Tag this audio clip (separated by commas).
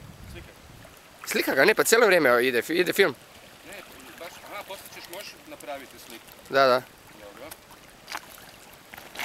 Speech